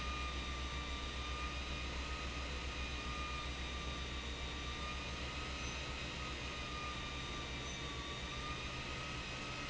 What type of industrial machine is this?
pump